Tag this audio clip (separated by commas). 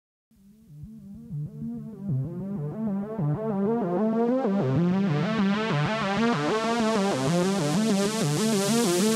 Music